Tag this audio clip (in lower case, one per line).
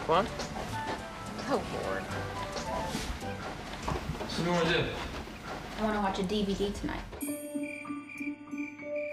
speech
music
inside a large room or hall